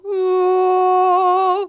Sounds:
Human voice, Female singing, Singing

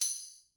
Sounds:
Musical instrument, Music, Tambourine, Percussion

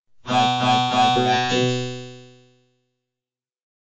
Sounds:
Human voice, Speech synthesizer, Speech

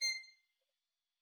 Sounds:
Music, Bowed string instrument, Musical instrument

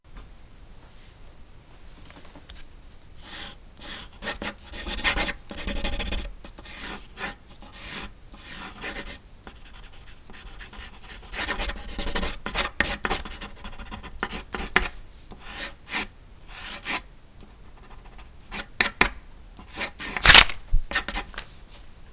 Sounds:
Writing, Domestic sounds

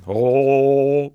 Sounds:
Male singing, Singing, Human voice

